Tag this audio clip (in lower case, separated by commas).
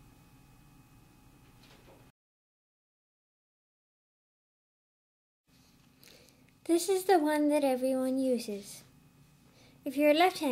speech